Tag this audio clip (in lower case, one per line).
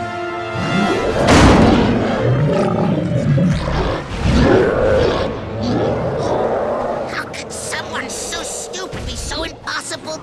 speech